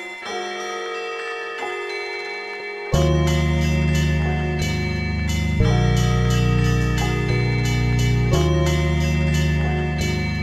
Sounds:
Music

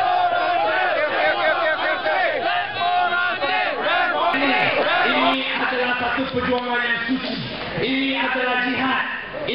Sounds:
Speech

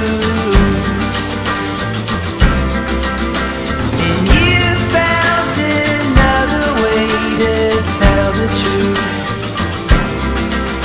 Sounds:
Music, Blues

